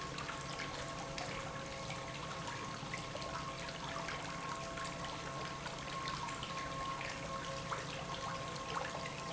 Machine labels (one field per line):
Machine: pump